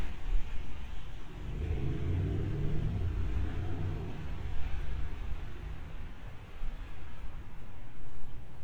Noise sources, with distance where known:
small-sounding engine, far

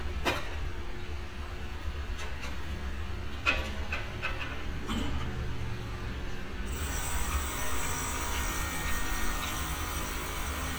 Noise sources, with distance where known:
jackhammer
non-machinery impact, near

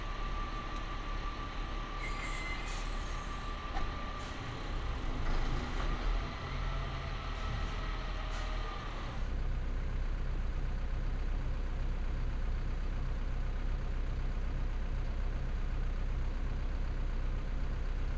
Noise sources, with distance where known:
large-sounding engine

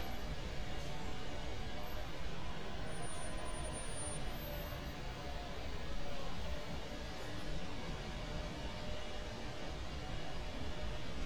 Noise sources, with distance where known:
engine of unclear size

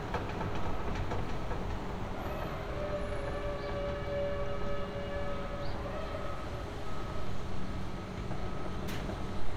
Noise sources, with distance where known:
engine of unclear size

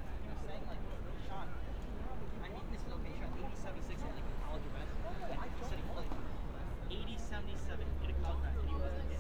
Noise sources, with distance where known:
person or small group talking, near

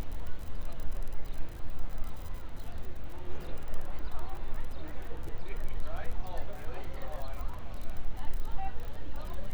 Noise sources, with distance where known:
person or small group talking

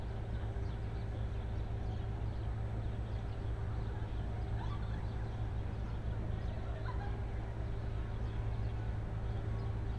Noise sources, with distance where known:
engine of unclear size
unidentified human voice

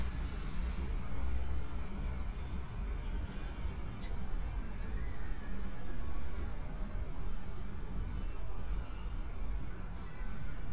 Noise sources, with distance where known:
engine of unclear size

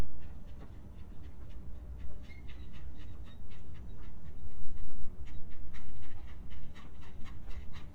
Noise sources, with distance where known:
background noise

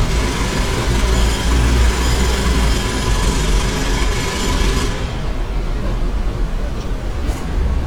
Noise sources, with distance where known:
jackhammer

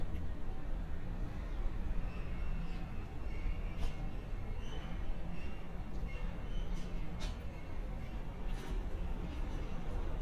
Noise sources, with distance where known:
background noise

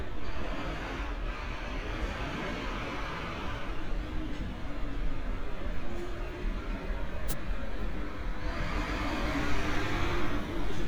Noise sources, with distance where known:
large-sounding engine, near

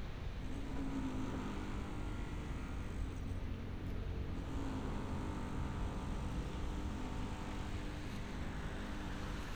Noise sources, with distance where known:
small-sounding engine, far

